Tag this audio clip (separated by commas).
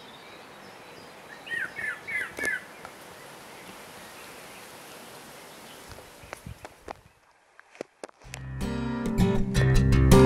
Music